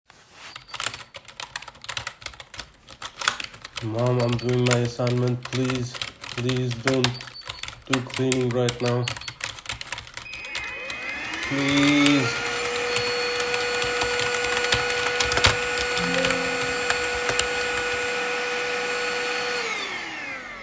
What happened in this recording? I am doing my assignment in my office when my mom comes with a vacuum cleaner in hand. I tell her not to clean because I am doing my assignment but she starts the vacuum cleaner anyway.